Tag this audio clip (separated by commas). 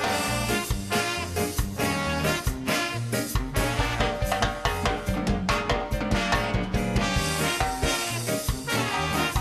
Music